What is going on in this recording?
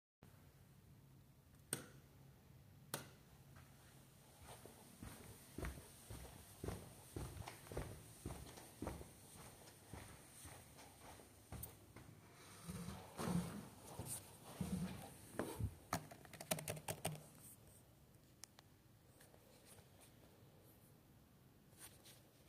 turn on the lights go to the chair and sit on it and start to type on the laptop